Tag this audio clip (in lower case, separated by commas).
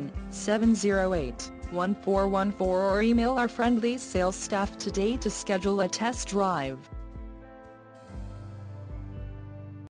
speech, music